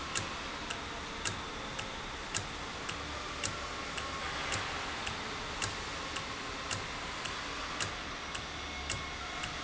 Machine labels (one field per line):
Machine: valve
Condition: normal